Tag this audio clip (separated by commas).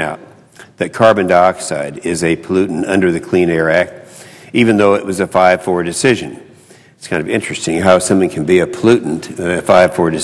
Narration, Male speech, Speech